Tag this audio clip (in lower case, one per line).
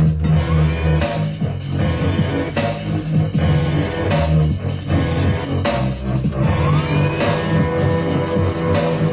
drum and bass
music
house music
electronic music
dubstep